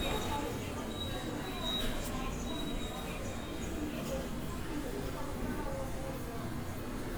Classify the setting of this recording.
subway station